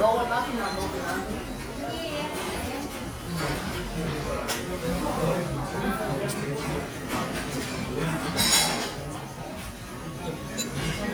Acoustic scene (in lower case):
restaurant